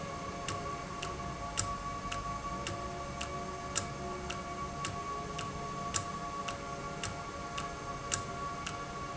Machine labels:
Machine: valve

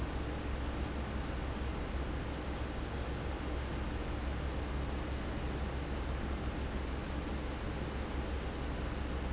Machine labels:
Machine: fan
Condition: abnormal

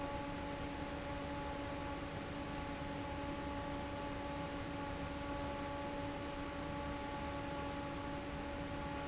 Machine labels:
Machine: fan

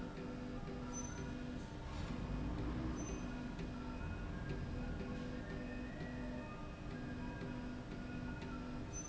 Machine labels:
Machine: slide rail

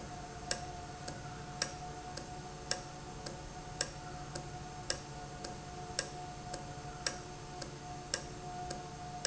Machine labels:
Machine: valve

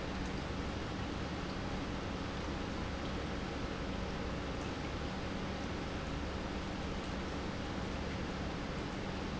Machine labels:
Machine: pump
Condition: normal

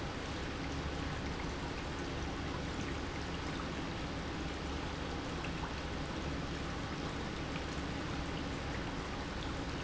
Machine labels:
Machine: pump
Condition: normal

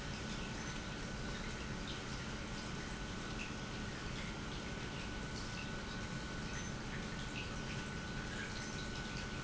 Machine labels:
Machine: pump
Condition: normal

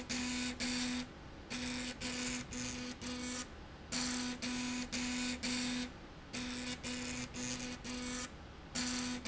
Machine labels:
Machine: slide rail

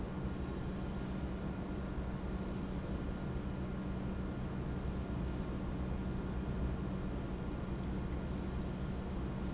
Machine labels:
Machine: pump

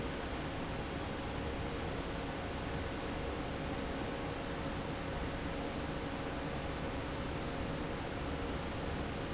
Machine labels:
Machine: fan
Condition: normal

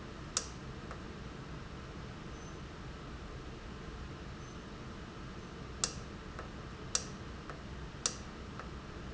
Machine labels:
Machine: valve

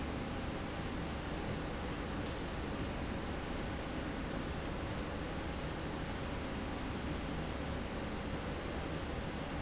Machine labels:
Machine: slide rail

